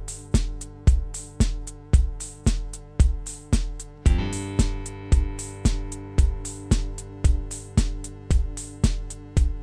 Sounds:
sampler, drum machine

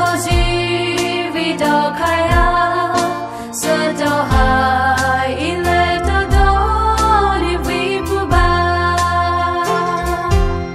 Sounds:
music, gospel music, christmas music

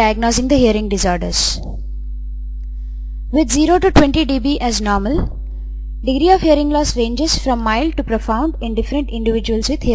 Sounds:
speech, woman speaking

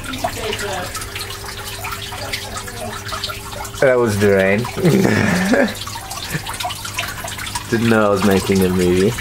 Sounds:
drip, speech

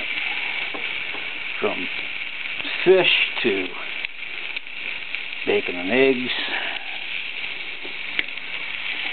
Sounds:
speech, fire

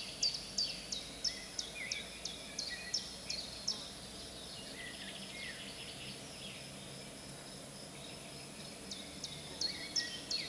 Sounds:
cuckoo bird calling

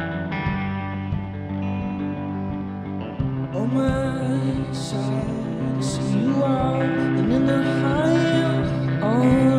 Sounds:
music

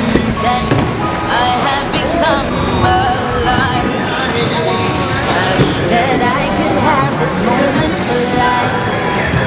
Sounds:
music

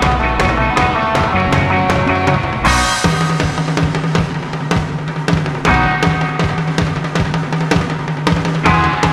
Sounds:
music

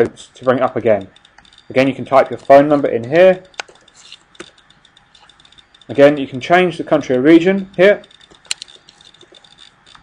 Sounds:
speech

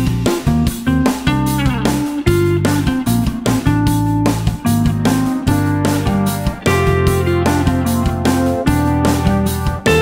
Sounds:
music, plucked string instrument, guitar, musical instrument, strum

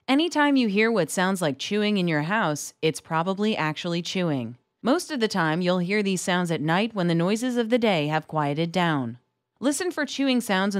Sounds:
speech

